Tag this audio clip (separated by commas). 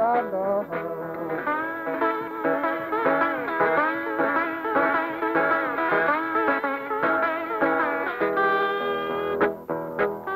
Guitar, Music, Plucked string instrument, Singing, Musical instrument, Acoustic guitar